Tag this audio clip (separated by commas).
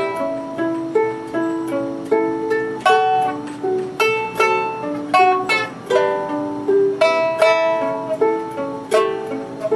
Music, Plucked string instrument, Pizzicato, Ukulele, Musical instrument